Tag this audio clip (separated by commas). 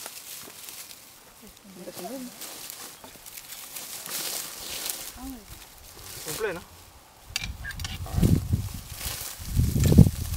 outside, rural or natural, Speech